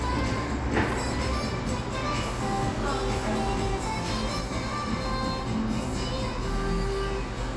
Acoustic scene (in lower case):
cafe